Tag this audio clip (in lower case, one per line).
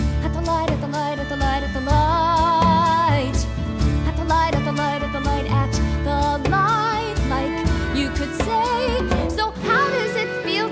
music